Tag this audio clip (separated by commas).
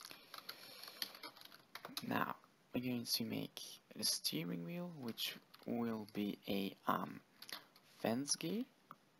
Speech, Computer keyboard